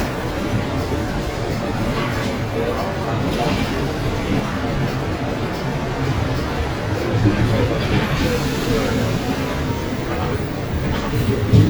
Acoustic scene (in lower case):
bus